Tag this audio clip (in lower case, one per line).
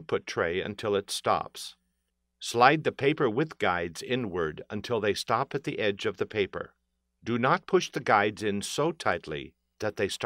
speech